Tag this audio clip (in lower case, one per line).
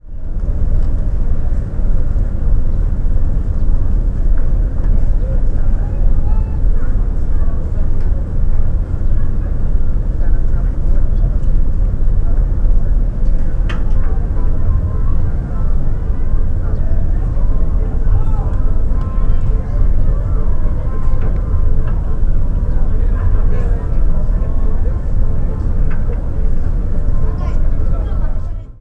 water vehicle
vehicle